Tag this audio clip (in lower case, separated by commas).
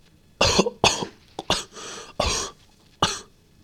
respiratory sounds, human voice, cough